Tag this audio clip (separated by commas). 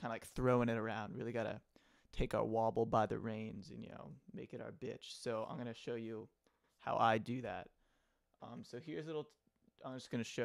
Speech